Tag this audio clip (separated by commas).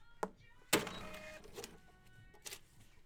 Mechanisms